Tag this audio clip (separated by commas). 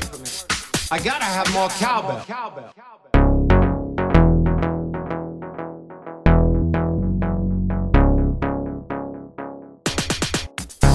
Electronic dance music, Drum machine, Music, Electronic music, Speech